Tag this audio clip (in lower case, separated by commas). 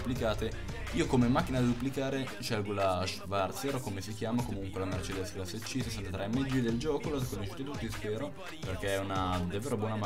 music, speech